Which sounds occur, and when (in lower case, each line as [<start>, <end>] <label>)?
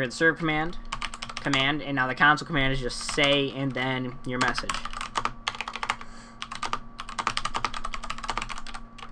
[0.00, 0.70] male speech
[0.00, 9.11] mechanisms
[0.86, 1.74] computer keyboard
[1.46, 4.60] male speech
[3.04, 3.45] computer keyboard
[4.19, 5.29] computer keyboard
[5.44, 6.02] computer keyboard
[6.39, 6.82] computer keyboard
[6.97, 8.83] computer keyboard
[8.95, 9.11] computer keyboard